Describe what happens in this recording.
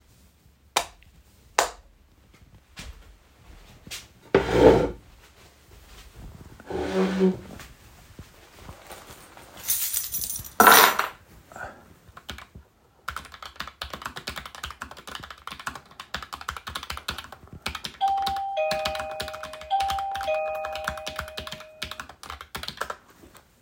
I turned on the lights. Adjusted my chair and sat down but managed to produce a scraping sound whilst doing it.Took my keys out of my pocket and put them on the desk and started typing on my keyboard.